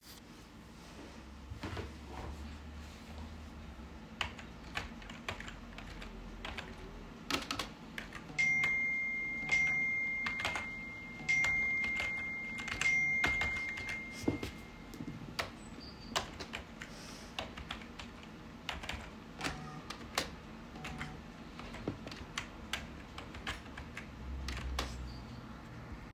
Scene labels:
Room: bedroom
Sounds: keyboard typing, phone ringing

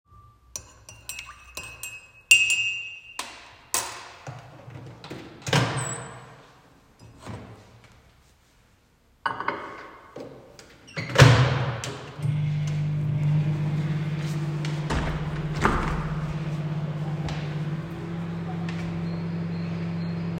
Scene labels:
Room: kitchen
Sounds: cutlery and dishes, microwave, window

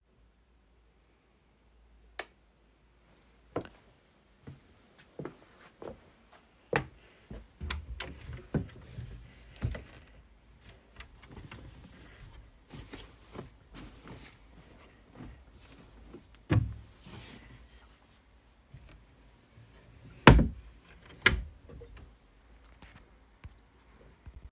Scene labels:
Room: bedroom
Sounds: light switch, footsteps, wardrobe or drawer (more than once)

